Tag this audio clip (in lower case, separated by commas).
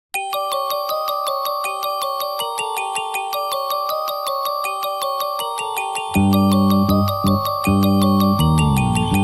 ringtone